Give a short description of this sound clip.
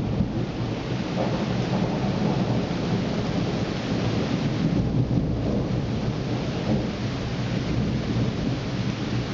Rain falls while thunder rumbles